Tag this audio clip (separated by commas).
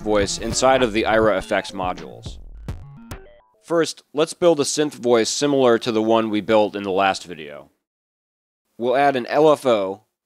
Speech